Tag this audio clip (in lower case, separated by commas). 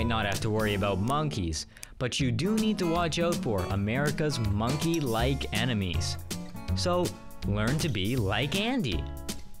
music, speech